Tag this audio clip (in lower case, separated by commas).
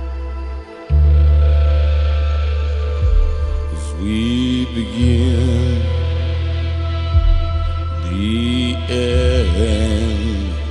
music, mantra